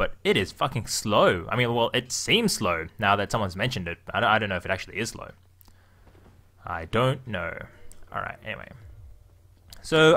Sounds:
speech

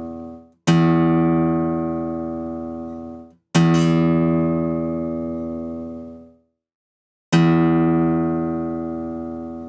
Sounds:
guitar
electronic tuner
acoustic guitar
music
musical instrument
plucked string instrument

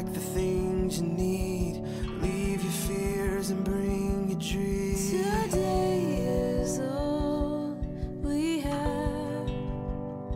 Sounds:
tender music
music

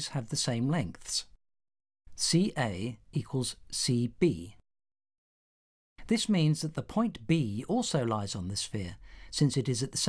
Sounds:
speech

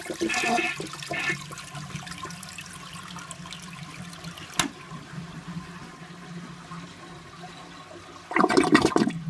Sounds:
toilet flushing

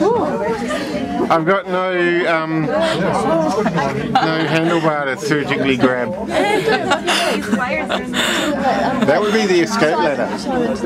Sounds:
speech

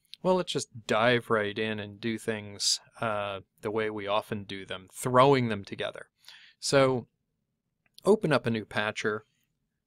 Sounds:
speech

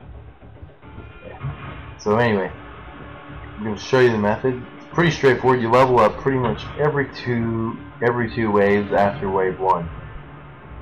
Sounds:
speech
music

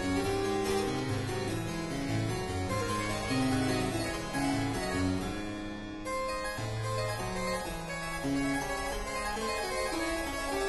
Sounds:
playing harpsichord

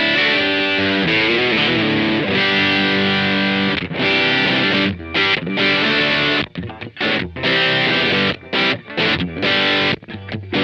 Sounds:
music

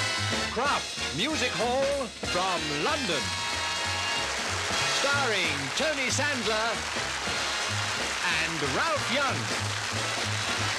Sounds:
music
speech

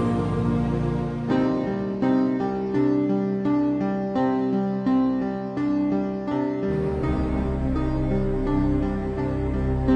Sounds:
music

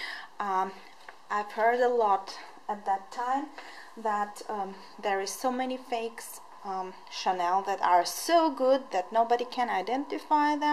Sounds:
speech

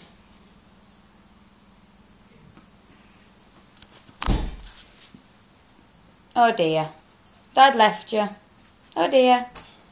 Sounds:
whimper (dog)
speech

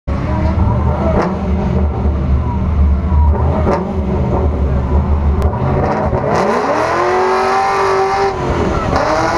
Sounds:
car
vehicle
race car

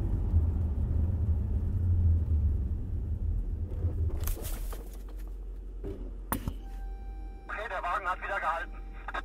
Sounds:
car
vehicle

